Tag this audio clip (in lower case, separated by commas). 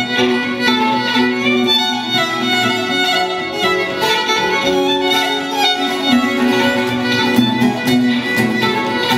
musical instrument, music, fiddle